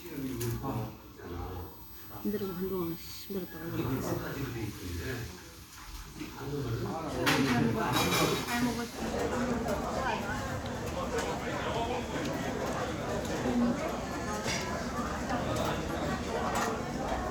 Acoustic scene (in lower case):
restaurant